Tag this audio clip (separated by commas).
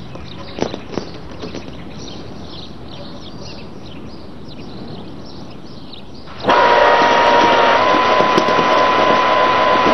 Animal